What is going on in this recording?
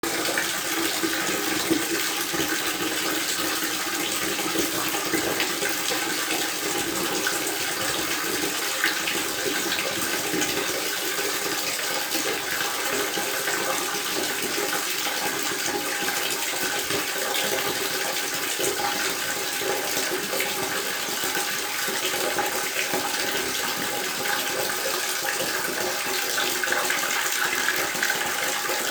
This is a single sound of water running.